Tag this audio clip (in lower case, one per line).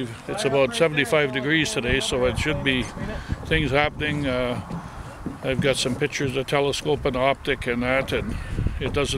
speech